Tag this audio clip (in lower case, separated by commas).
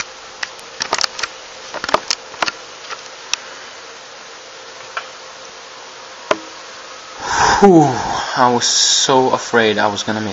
speech, inside a small room